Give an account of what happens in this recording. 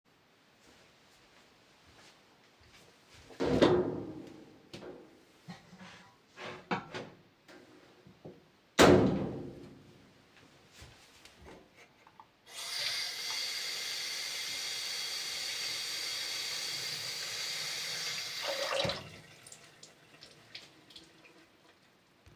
A person approaching the kitchen and looking in a wardrobe. After that he turns on the water. After a few seconds he turns off the water again.